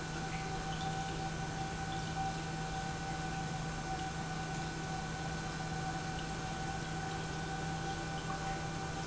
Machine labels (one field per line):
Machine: pump